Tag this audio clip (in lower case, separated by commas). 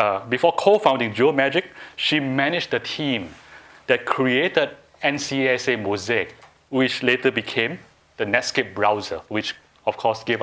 speech